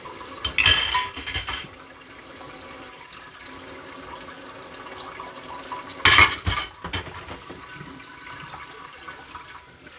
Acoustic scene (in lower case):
kitchen